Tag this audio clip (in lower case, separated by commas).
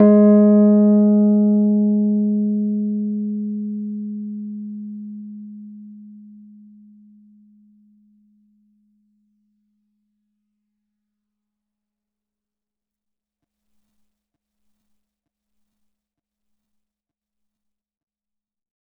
keyboard (musical), piano, musical instrument, music